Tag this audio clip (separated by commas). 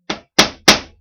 Tools, Hammer